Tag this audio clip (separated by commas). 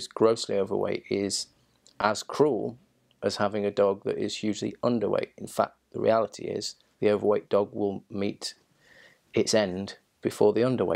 Speech